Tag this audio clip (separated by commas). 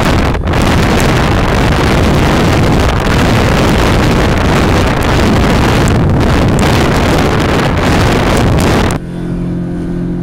motorboat, speedboat, Vehicle